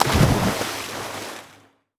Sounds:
Liquid, splatter

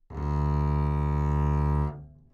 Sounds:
Musical instrument, Bowed string instrument, Music

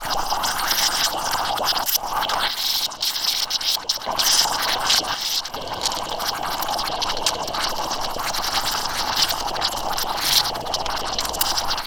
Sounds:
Liquid

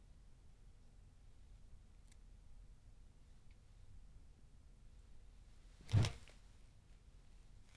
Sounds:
Whoosh

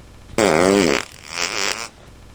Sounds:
Fart

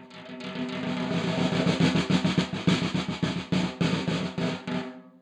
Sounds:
Snare drum, Percussion, Musical instrument, Drum, Music

